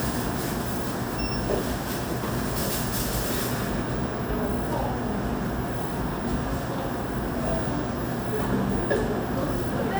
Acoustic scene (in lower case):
cafe